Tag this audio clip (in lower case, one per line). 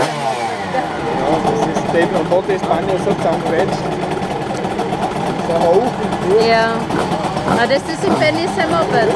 speech